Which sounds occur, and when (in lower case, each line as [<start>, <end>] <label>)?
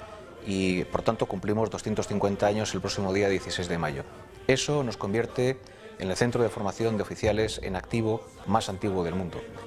[0.00, 1.05] choir
[0.00, 9.65] music
[0.41, 0.80] man speaking
[0.90, 3.99] man speaking
[1.71, 7.16] choir
[4.30, 4.37] tick
[4.47, 5.50] man speaking
[5.56, 5.96] breathing
[5.58, 5.67] tick
[5.98, 8.20] man speaking
[7.85, 9.65] choir
[8.43, 9.48] man speaking